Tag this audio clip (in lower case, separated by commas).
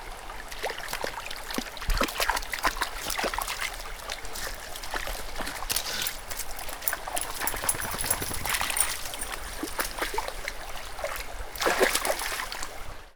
stream, water